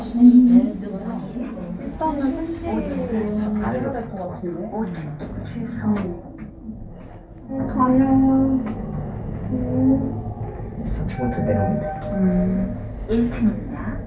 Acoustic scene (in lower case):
elevator